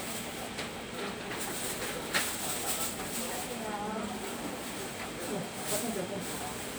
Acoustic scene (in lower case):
crowded indoor space